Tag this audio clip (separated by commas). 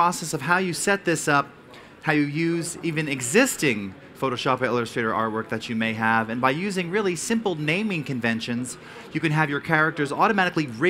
Speech